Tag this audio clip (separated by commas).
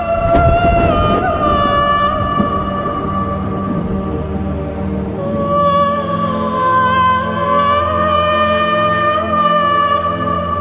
Music